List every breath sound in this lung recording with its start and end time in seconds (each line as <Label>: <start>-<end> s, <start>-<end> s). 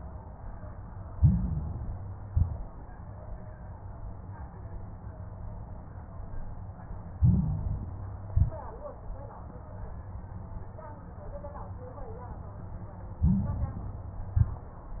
Inhalation: 1.10-2.20 s, 7.16-8.26 s, 13.21-14.31 s
Exhalation: 2.24-2.79 s, 8.28-8.83 s, 14.37-14.91 s
Crackles: 1.10-2.20 s, 2.24-2.79 s, 7.16-8.26 s, 8.28-8.83 s, 13.21-14.31 s, 14.37-14.91 s